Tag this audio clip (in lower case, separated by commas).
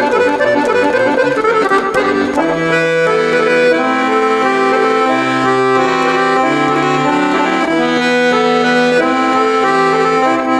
musical instrument, accordion, music